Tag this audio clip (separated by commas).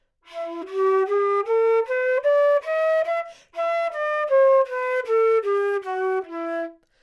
Music, Musical instrument, Wind instrument